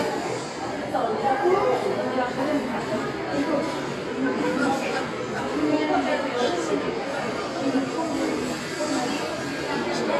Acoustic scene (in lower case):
crowded indoor space